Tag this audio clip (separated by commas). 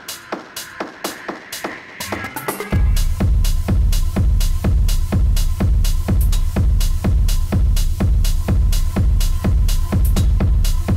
Music, Electronic music, Techno